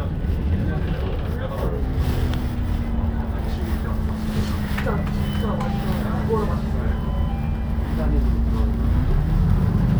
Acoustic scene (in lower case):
bus